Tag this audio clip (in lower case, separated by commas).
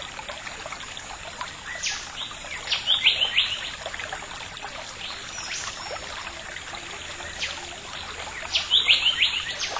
animal